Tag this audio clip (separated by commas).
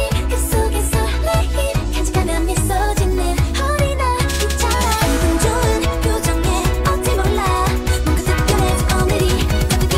Music